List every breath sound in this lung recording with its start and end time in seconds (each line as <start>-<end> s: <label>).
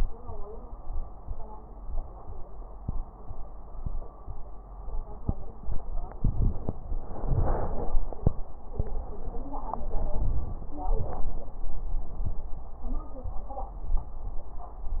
6.13-6.77 s: inhalation
6.93-8.03 s: exhalation
9.86-10.76 s: inhalation
10.88-11.64 s: exhalation